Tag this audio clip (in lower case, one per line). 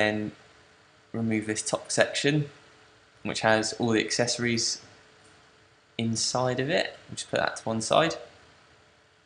speech